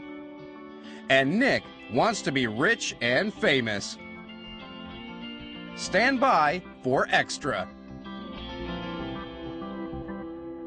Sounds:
speech, music

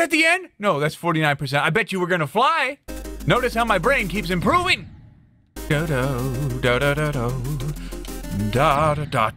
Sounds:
inside a small room, music, speech

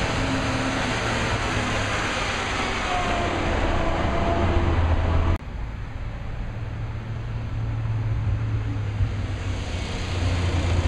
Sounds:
vehicle, truck

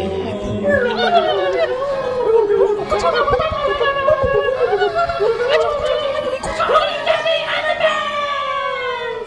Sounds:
music

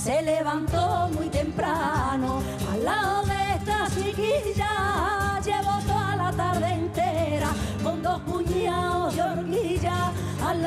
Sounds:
music of asia, music

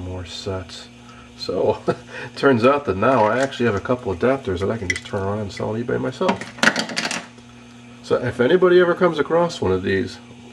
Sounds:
inside a small room, speech

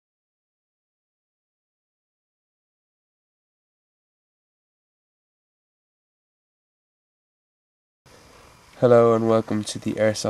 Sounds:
speech

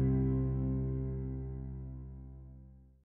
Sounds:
music, speech

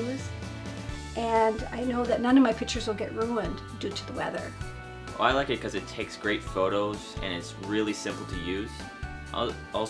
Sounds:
music, speech, single-lens reflex camera

